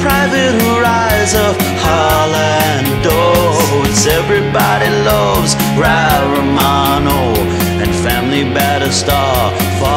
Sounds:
Happy music, Music

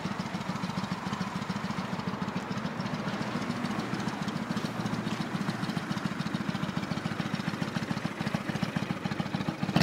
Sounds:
Idling, Vehicle, Engine

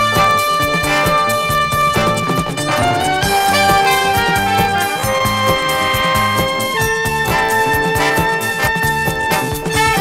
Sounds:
Music

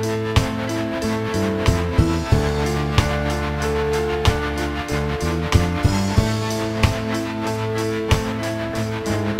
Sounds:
Music

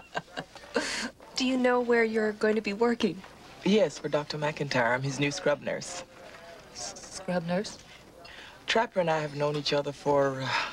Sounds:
Speech

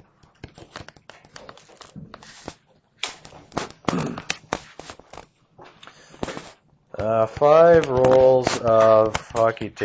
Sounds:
inside a small room, Speech

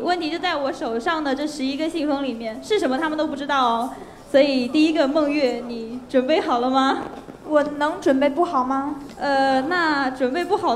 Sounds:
Speech, Female speech

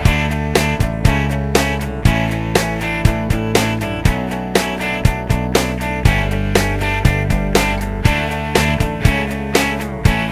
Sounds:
Music

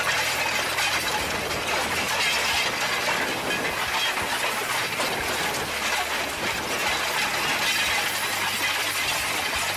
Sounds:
Vehicle, outside, rural or natural

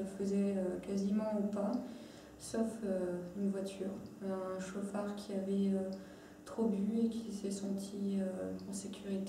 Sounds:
Speech

